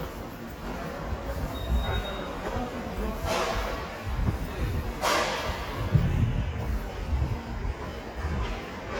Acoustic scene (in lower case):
subway station